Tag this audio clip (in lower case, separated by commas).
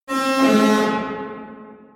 alarm